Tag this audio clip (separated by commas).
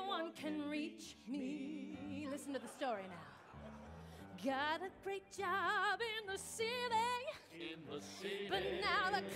Music, Speech